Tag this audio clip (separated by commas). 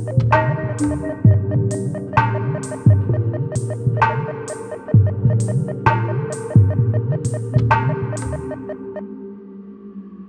Throbbing